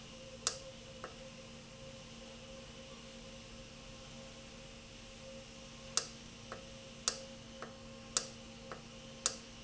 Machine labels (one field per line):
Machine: valve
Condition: normal